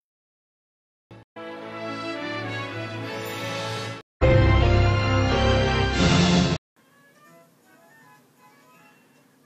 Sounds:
music

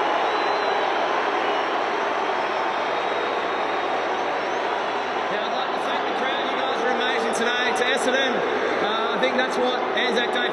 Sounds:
people booing

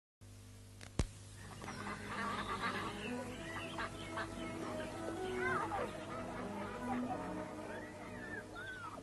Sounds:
duck
music
television
outside, urban or man-made

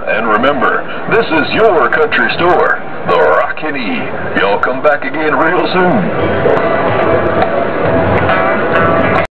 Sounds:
speech

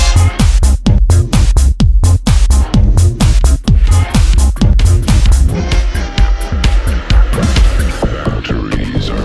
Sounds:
electronic music
techno
music
trance music
house music

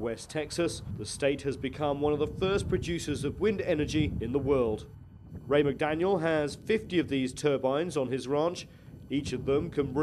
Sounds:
speech
wind noise (microphone)

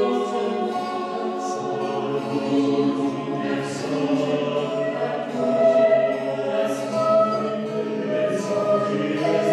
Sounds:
choir
music

